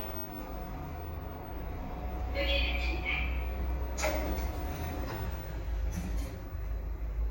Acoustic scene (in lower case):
elevator